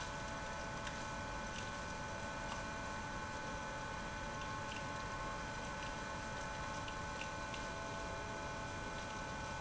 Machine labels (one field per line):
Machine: pump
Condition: abnormal